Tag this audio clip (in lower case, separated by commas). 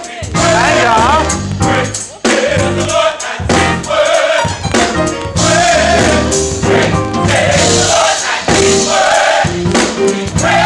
female singing, speech, music, choir